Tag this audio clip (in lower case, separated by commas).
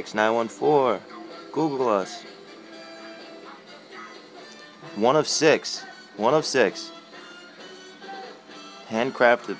musical instrument, music, guitar, electric guitar, speech